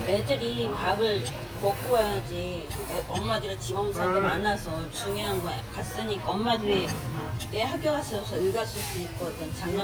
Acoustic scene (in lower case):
restaurant